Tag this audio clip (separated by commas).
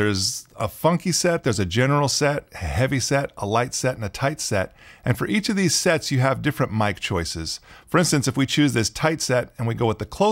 Speech